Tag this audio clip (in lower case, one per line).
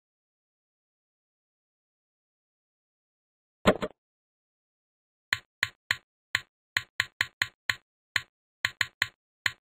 chop